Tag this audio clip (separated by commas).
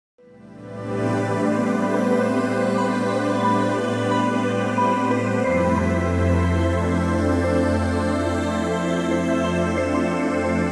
New-age music